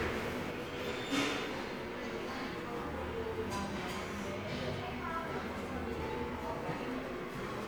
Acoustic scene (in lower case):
subway station